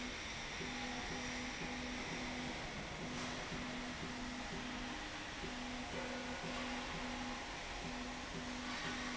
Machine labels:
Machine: slide rail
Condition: normal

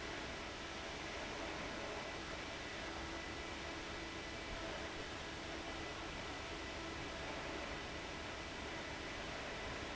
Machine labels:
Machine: fan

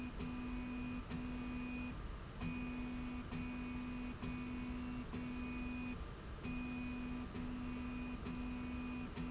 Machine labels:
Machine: slide rail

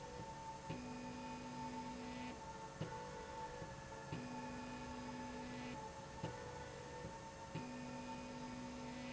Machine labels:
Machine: slide rail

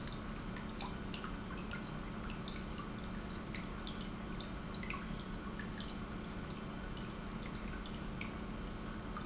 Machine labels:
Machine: pump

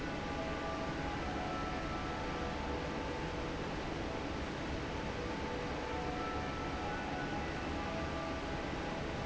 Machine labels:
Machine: fan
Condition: normal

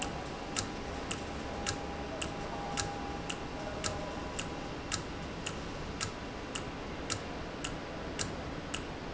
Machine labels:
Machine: valve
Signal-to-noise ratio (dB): -6 dB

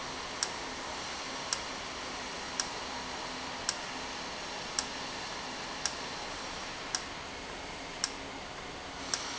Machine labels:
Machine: valve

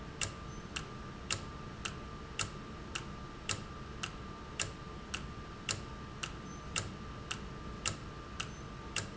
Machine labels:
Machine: valve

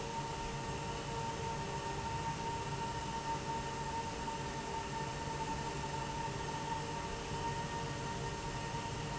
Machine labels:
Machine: fan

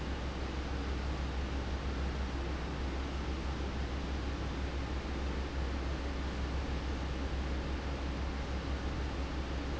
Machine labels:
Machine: fan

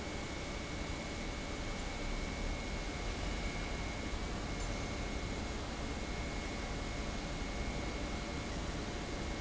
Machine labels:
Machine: pump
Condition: normal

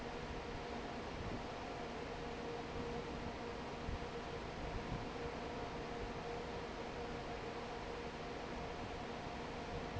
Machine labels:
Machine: fan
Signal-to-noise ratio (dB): 6 dB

